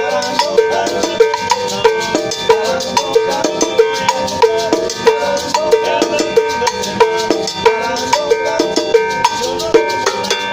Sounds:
playing bongo

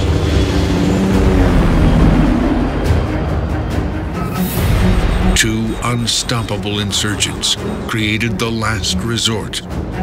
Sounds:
Music, Speech

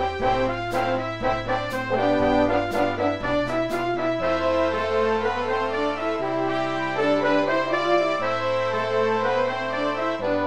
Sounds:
Music, Sound effect

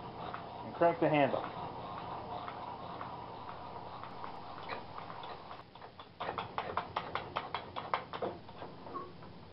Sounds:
Tools, Speech

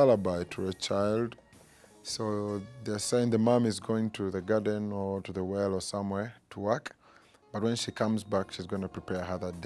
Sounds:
Speech, Music

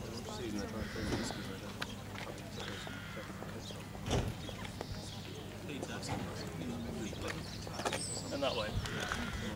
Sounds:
Speech

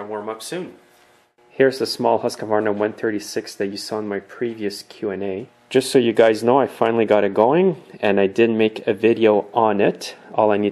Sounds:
Speech

